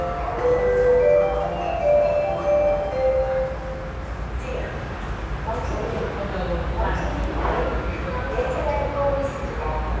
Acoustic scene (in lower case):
subway station